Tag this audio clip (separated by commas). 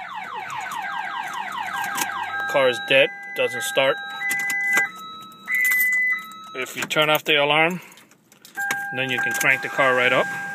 Car alarm